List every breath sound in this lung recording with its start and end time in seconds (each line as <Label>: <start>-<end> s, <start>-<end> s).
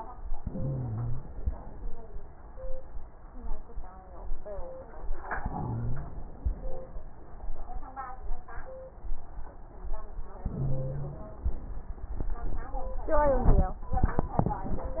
Inhalation: 0.37-1.45 s, 5.34-6.43 s, 10.47-11.55 s
Wheeze: 0.37-1.45 s, 5.34-6.43 s, 10.47-11.55 s